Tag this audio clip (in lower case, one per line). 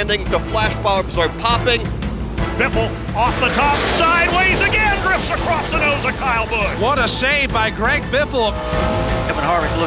music
speech